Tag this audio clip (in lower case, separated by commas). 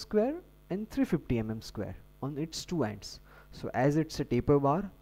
speech